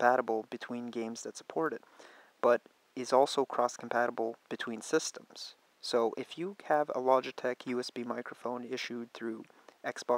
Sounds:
Speech

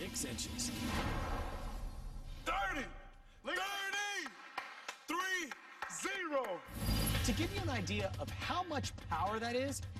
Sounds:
bouncing on trampoline

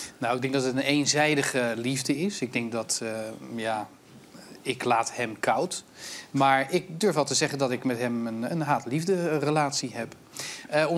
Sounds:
Speech

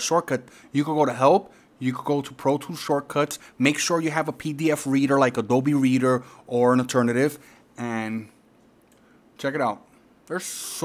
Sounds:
Speech

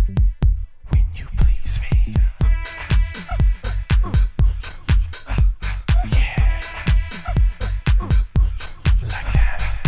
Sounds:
Music, House music

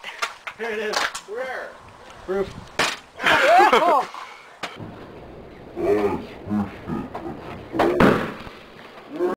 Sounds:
Speech

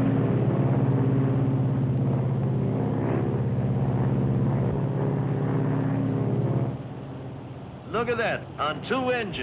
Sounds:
airplane, Vehicle, Aircraft, Engine, Speech

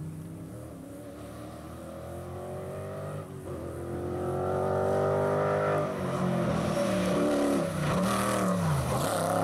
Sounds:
revving, Medium engine (mid frequency), Vehicle, Engine

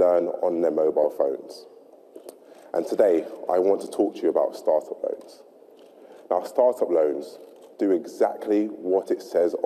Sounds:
man speaking, monologue, Speech

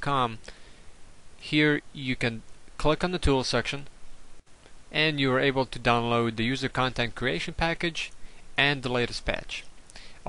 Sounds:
Speech

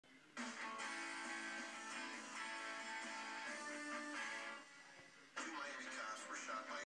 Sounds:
Television, Speech, Music

